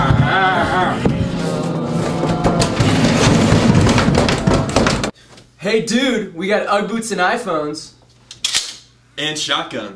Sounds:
speech
inside a small room
inside a large room or hall

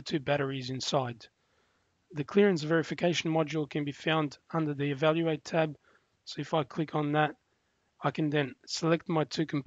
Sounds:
speech

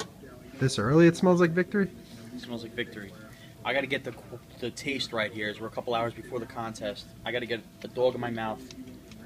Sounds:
speech

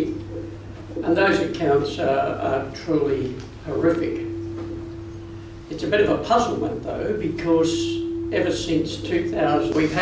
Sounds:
speech

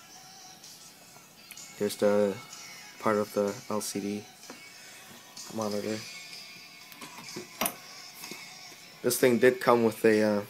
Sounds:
speech
music
inside a small room

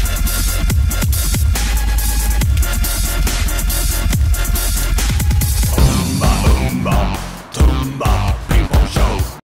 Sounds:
music

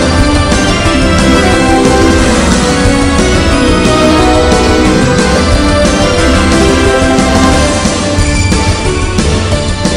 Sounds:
music

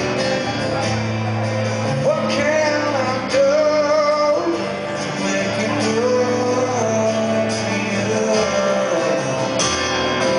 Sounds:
music

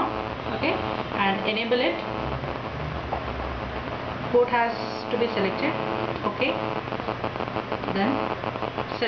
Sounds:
speech

